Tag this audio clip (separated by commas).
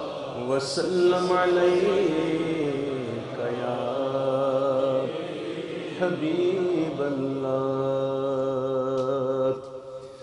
Chant